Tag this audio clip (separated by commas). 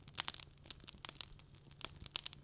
Crackle, Fire